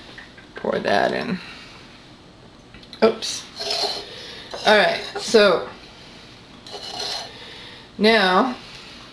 A woman speaking followed by glass clinking with liquid dripping then plastic shuffling